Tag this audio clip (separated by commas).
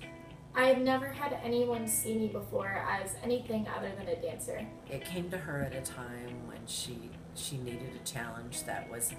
inside a small room, Music, Speech